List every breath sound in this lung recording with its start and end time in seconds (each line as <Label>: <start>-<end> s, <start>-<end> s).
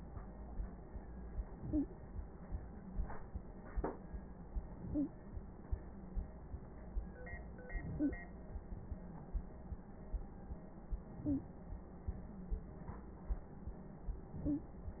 Inhalation: 1.50-2.09 s, 4.63-5.22 s, 7.72-8.22 s, 11.06-11.56 s, 14.27-14.76 s
Wheeze: 1.69-1.86 s, 4.93-5.11 s, 7.97-8.14 s, 11.24-11.40 s, 14.45-14.60 s